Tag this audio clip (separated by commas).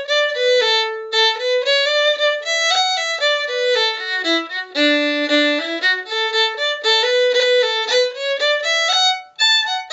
Musical instrument, Music, Violin